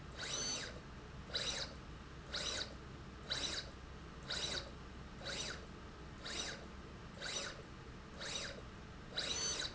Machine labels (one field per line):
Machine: slide rail